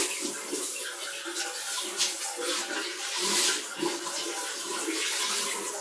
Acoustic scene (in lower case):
restroom